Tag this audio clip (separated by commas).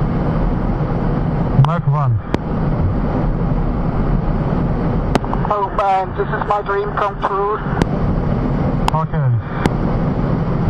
Speech